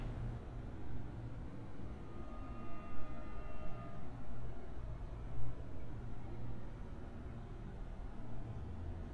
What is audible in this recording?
background noise